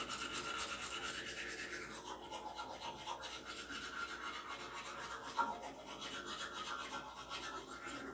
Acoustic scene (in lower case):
restroom